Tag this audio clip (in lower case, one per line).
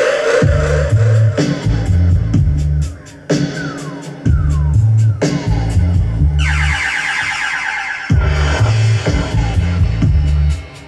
music